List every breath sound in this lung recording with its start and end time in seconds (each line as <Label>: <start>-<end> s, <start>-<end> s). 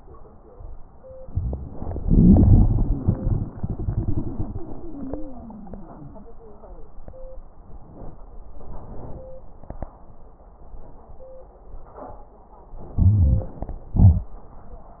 Inhalation: 2.00-4.61 s, 12.98-13.59 s
Exhalation: 13.98-14.31 s
Wheeze: 4.58-6.27 s
Crackles: 2.00-4.61 s, 12.98-13.59 s